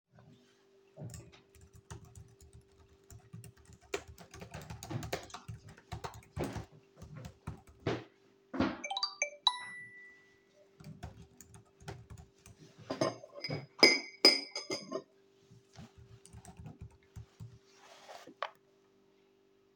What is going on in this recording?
I was typing,someone walked in and walked out,had a phone notification then I stirred the tea in a mug with a spoon